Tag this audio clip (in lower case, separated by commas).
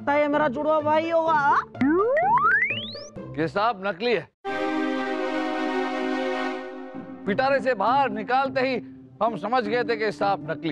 music, speech